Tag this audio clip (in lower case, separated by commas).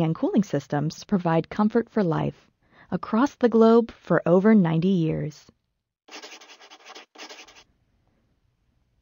speech